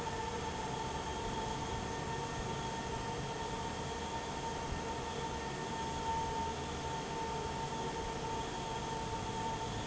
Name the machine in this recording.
fan